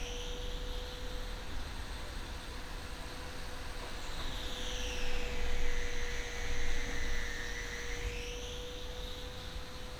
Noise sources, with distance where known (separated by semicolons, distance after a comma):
small or medium rotating saw, near